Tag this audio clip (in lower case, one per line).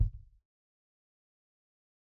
percussion
music
drum
bass drum
musical instrument